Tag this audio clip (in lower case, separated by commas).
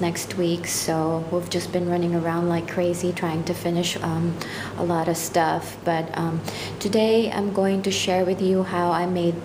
speech